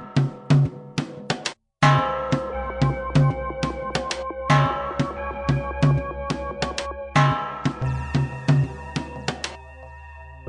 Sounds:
music

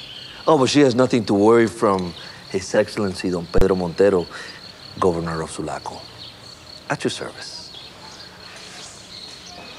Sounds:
insect
cricket

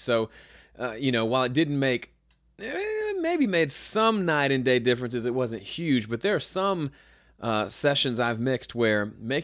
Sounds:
speech

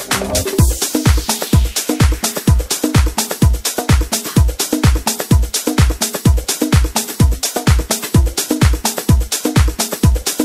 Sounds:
music

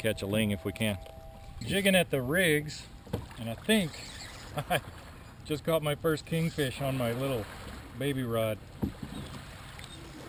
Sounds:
ocean
waves

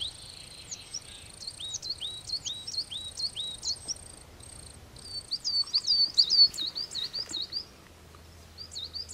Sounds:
black capped chickadee calling

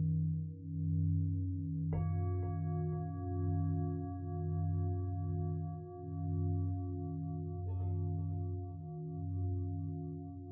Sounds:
singing bowl

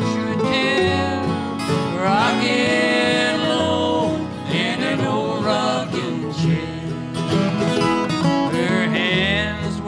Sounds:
music

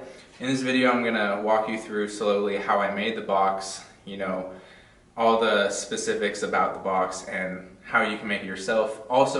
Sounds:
speech

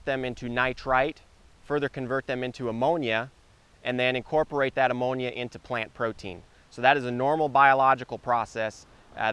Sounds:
speech

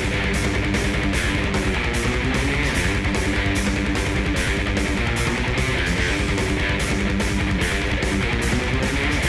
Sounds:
electric guitar
music
musical instrument
guitar
plucked string instrument

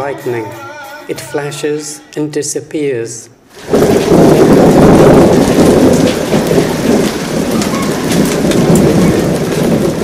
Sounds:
thunderstorm
raindrop
thunder
rain

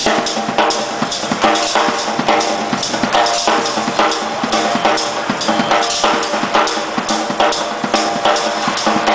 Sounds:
music

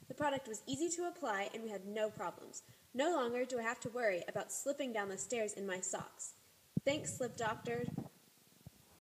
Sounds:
speech

